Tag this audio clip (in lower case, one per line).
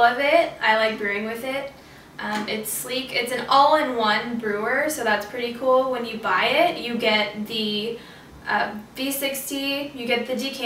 speech